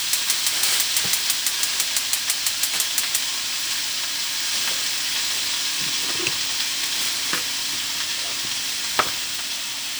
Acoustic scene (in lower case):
kitchen